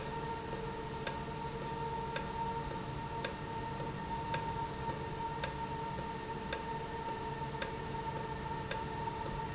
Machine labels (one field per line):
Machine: valve